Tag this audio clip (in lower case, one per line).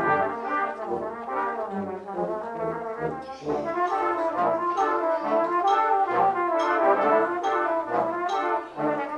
trumpet
orchestra
music
brass instrument